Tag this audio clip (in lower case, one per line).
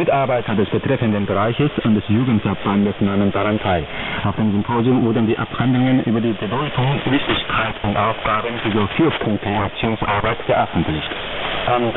male speech
speech
human voice